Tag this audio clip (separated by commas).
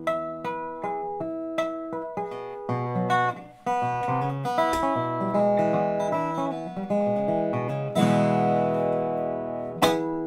playing steel guitar